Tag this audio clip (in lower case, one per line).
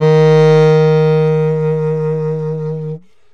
musical instrument
woodwind instrument
music